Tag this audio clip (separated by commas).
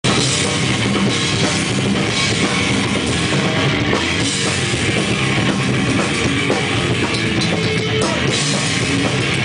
Music, Drum, Rock music